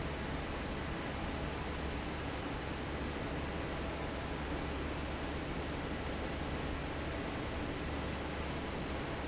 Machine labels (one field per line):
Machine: fan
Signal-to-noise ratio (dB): -6 dB